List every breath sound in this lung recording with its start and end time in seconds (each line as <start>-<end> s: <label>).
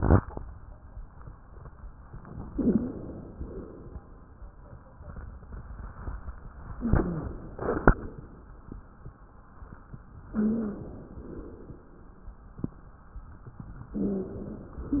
2.45-3.04 s: wheeze
2.49-3.34 s: inhalation
3.32-4.18 s: exhalation
6.77-7.55 s: inhalation
6.77-7.55 s: wheeze
7.55-8.33 s: exhalation
10.34-10.93 s: wheeze
10.34-11.12 s: inhalation
11.18-11.92 s: exhalation
13.93-14.71 s: wheeze
13.93-14.80 s: inhalation